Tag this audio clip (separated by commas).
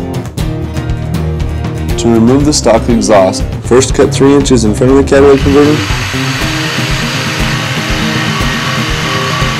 Speech, Music